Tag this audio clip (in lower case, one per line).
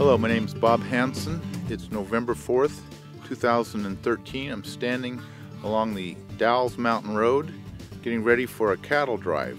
speech
music